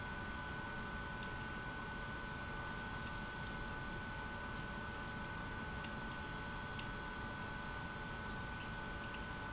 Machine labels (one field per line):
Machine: pump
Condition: abnormal